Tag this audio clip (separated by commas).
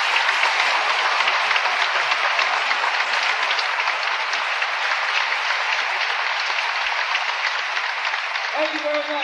Applause